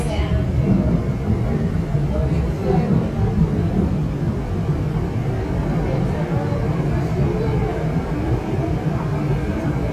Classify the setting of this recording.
subway train